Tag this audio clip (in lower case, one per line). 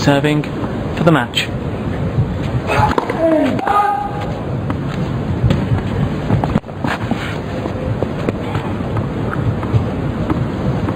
speech